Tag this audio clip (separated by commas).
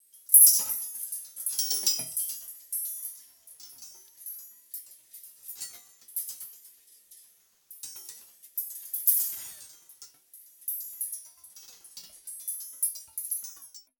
Glass, Chink